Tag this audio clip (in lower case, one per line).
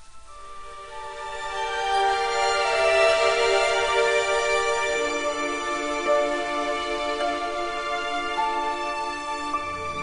music
theme music